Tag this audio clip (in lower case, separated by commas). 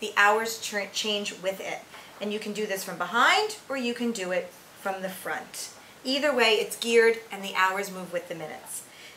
speech